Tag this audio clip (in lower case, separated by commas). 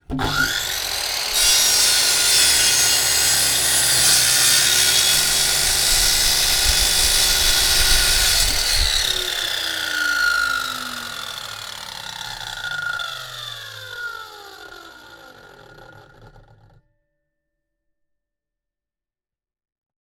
tools, sawing